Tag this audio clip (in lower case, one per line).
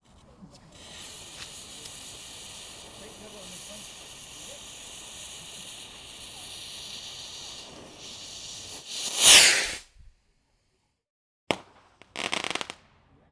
fireworks
explosion